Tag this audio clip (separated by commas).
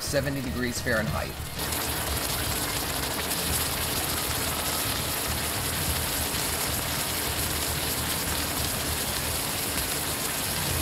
Speech, Music, Water, outside, rural or natural